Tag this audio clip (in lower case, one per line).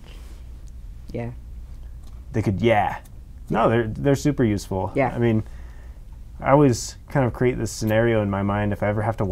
strike lighter